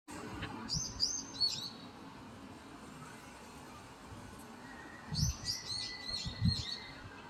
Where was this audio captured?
in a residential area